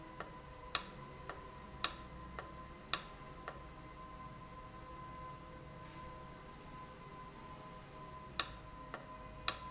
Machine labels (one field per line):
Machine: valve